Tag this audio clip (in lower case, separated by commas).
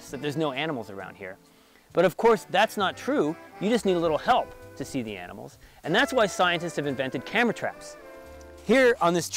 speech, music